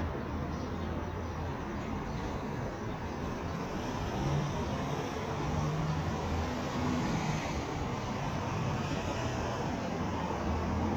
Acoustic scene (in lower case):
street